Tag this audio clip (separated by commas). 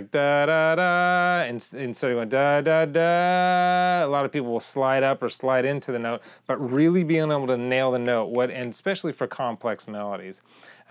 Speech, Male singing